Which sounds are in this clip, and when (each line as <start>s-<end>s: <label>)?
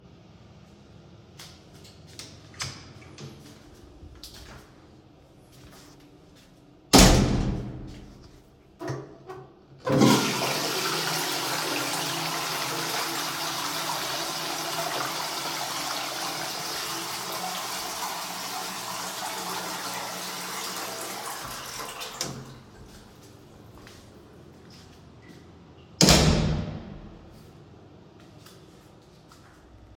1.2s-6.2s: footsteps
2.4s-4.2s: door
6.6s-8.4s: door
9.7s-22.8s: toilet flushing
23.0s-29.3s: footsteps
25.8s-27.7s: door